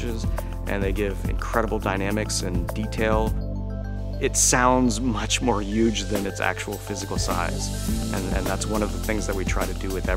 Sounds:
Music, Speech

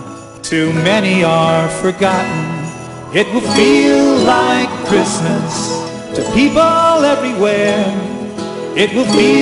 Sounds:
Music

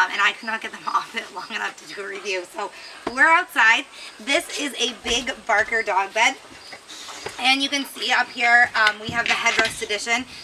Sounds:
Speech

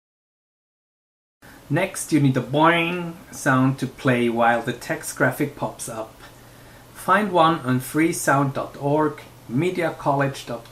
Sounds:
Speech

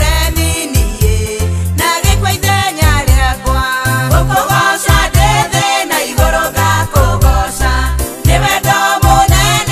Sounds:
Gospel music, Music

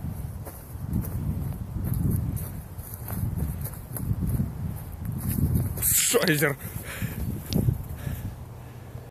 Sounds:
Speech

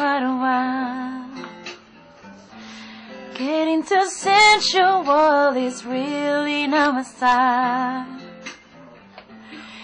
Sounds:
Female singing, Music

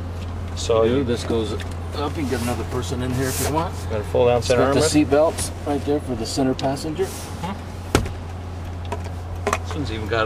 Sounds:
Speech

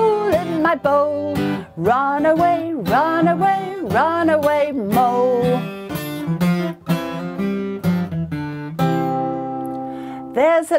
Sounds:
Music

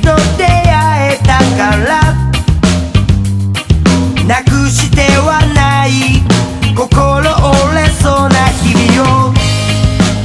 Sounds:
Music

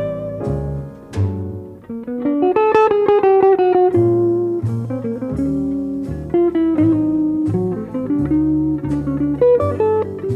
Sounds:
Guitar, Music, Plucked string instrument

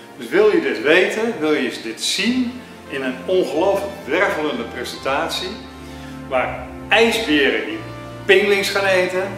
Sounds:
Speech, Music

